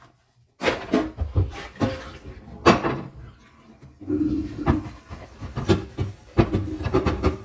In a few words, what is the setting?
kitchen